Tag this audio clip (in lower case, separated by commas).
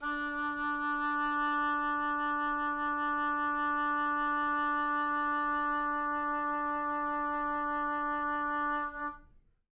music, wind instrument, musical instrument